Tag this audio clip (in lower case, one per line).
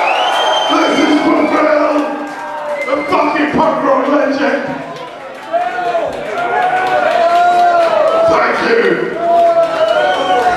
speech